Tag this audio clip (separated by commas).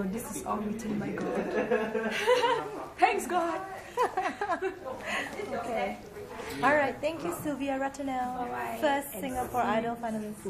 Speech, woman speaking